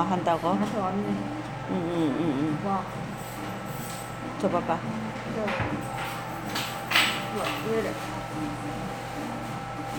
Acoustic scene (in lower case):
cafe